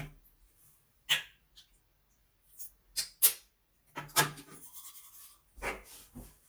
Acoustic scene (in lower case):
restroom